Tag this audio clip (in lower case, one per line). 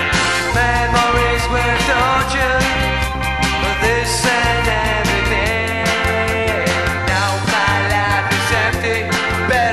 music